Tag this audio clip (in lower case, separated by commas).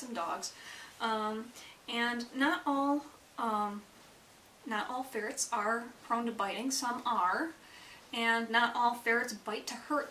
speech